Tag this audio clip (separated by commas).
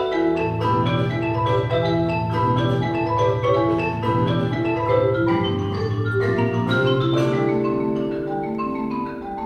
Percussion, Music